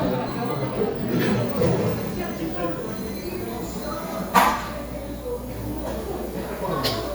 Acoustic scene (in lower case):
cafe